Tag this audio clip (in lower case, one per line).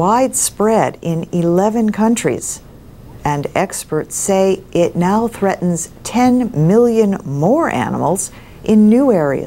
speech